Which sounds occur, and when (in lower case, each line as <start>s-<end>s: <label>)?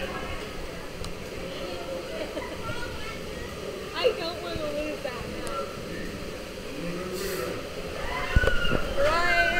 0.0s-0.7s: speech
0.0s-9.5s: conversation
0.0s-9.5s: speech babble
0.0s-9.5s: mechanisms
1.0s-1.1s: generic impact sounds
1.0s-1.1s: speech babble
1.4s-2.3s: speech
2.3s-2.9s: laughter
2.6s-3.6s: woman speaking
3.9s-5.7s: woman speaking
4.0s-4.2s: laughter
5.4s-5.5s: generic impact sounds
6.8s-7.6s: man speaking
7.9s-8.9s: shout
8.8s-9.5s: woman speaking
9.0s-9.5s: shout